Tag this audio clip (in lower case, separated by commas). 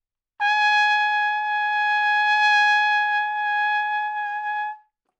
brass instrument, trumpet, music, musical instrument